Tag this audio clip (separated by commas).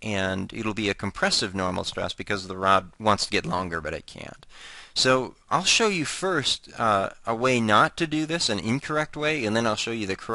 Speech